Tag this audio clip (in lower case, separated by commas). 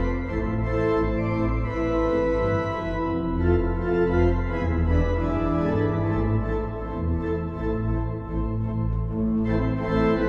playing electronic organ